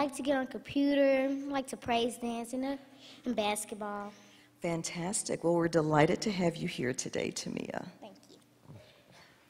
Two females are having a conversation